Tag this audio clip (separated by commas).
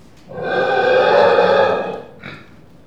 Animal, livestock